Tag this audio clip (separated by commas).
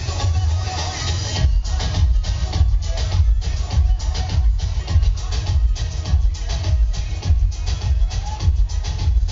Music